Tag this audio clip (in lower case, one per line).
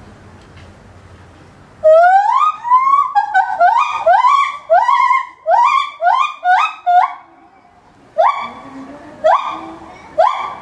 gibbon howling